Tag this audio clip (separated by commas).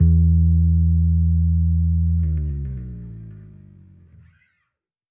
Music, Bass guitar, Plucked string instrument, Musical instrument, Guitar